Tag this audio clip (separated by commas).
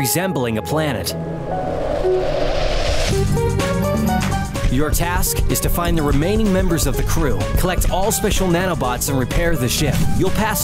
Music, Speech